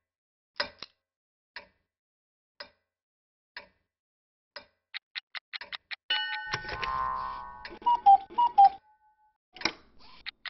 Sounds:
tick, tick-tock

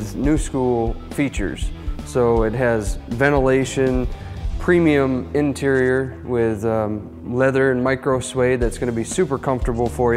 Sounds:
music, speech

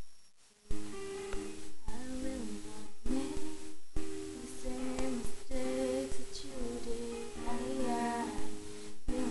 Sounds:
music, female singing

